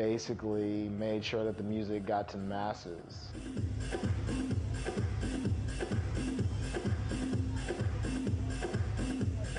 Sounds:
techno
music
speech

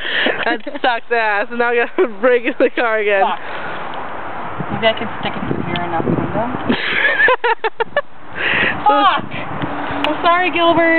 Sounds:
vehicle
speech

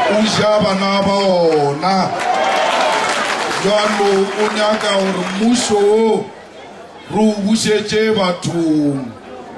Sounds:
speech

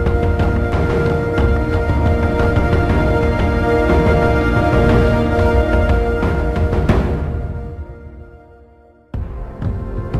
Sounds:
new-age music
music
rhythm and blues

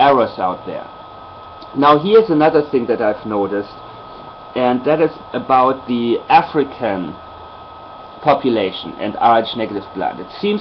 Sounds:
speech

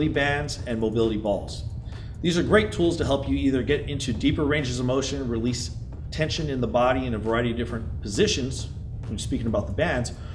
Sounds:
speech

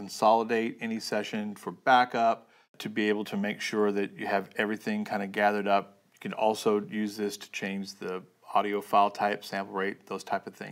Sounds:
speech

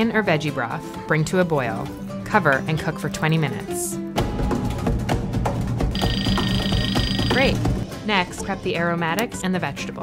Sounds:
music
speech

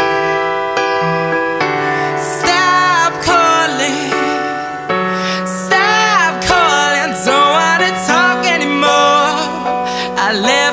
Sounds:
music

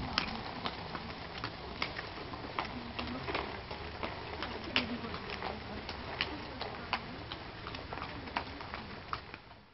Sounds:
horse clip-clop
clip-clop
speech
horse

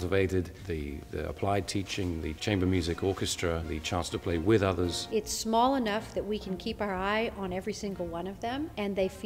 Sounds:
music
speech

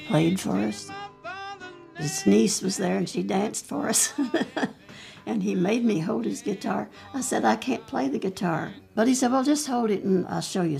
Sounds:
music
speech
folk music

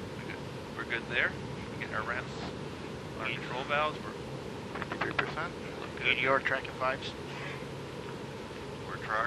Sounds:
speech

